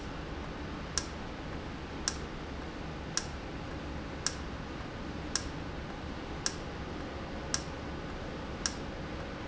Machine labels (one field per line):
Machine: valve